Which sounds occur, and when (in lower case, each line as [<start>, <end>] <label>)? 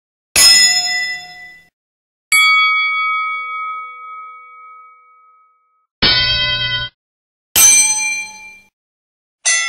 [0.29, 1.68] bell
[2.28, 5.80] bell
[5.99, 6.94] bell
[7.53, 8.66] bell